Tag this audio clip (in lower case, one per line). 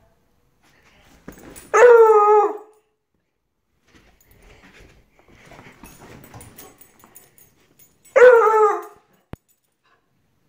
dog baying